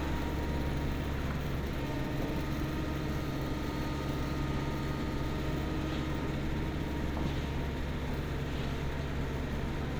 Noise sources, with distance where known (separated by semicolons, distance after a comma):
unidentified impact machinery, far